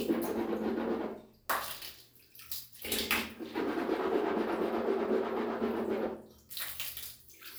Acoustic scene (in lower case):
restroom